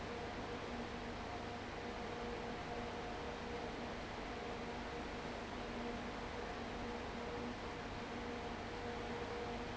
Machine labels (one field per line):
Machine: fan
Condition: abnormal